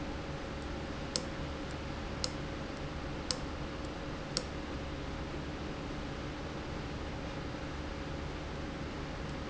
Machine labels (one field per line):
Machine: valve